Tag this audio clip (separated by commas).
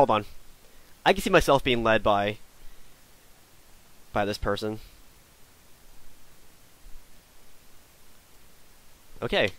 Speech